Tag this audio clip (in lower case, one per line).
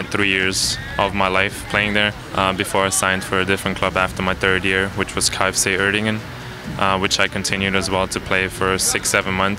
music
inside a public space
speech